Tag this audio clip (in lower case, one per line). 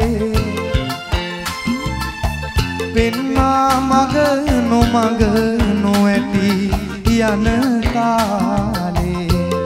folk music
music
singing